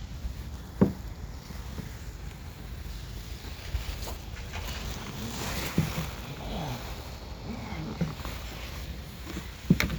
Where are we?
in a park